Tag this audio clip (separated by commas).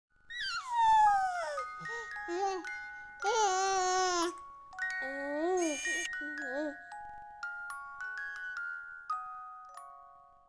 Glockenspiel, Music